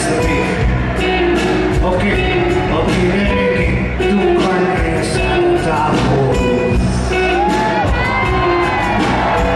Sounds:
inside a large room or hall, Speech, Music

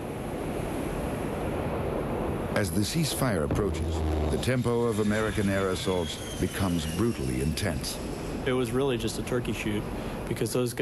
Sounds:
Speech

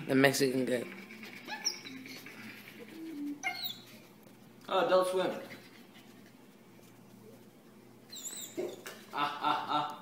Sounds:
inside a small room, Animal, pets, Dog, Speech

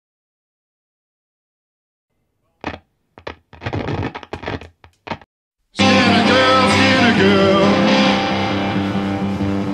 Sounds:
Music, Singing

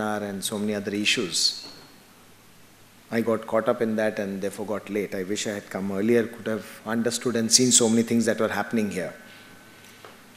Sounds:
Speech, man speaking

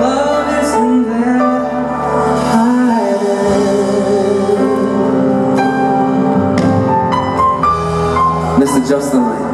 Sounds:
Music, Singing

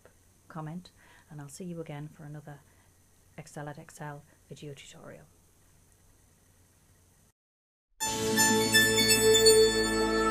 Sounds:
Speech

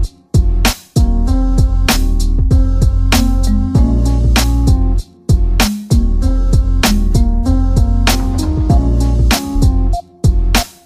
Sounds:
Music, Jazz

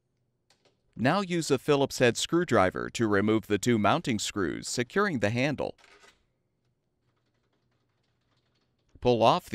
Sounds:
Speech

